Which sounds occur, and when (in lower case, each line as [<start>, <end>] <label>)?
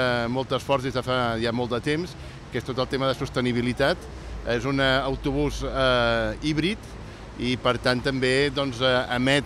[0.00, 2.11] male speech
[0.00, 9.45] background noise
[2.15, 2.42] breathing
[2.51, 3.99] male speech
[3.99, 4.44] surface contact
[4.43, 6.77] male speech
[6.82, 7.27] breathing
[7.33, 9.45] male speech